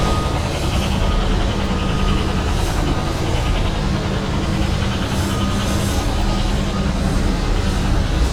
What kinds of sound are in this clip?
unidentified impact machinery